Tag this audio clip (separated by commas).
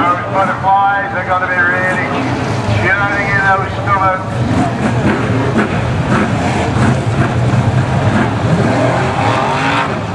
Speech, Motor vehicle (road), Vehicle, Car